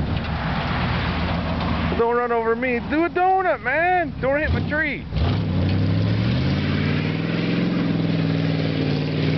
A vehicle drives by, and a man speaks